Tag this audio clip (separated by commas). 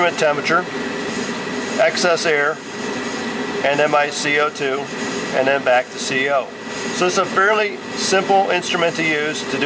Speech